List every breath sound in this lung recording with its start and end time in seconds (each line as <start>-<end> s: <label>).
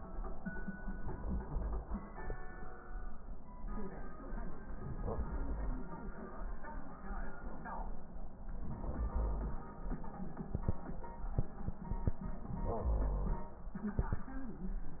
4.65-5.79 s: inhalation
8.48-9.62 s: inhalation
12.44-13.58 s: inhalation